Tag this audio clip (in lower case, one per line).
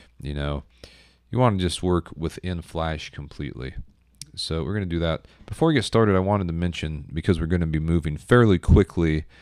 speech